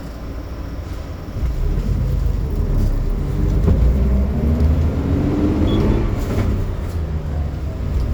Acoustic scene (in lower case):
bus